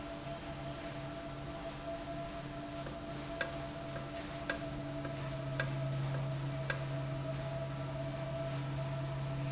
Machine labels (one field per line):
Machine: valve